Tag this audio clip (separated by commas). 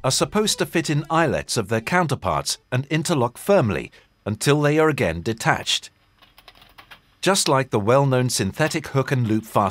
monologue, Speech